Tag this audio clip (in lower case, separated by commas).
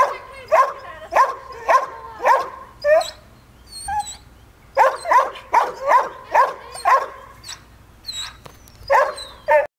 bow-wow, whimper (dog), speech, dog bow-wow, animal, dog, pets